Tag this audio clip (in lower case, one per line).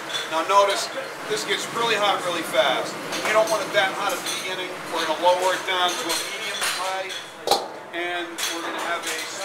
speech